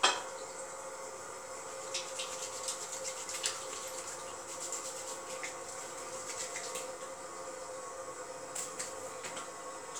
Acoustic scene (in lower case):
restroom